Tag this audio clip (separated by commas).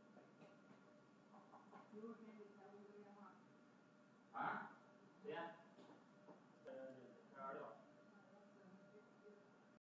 Speech